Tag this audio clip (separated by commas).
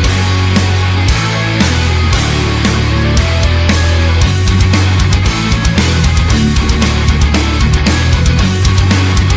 Music, Rock music